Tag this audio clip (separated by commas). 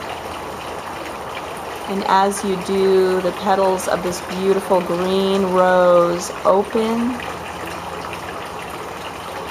Speech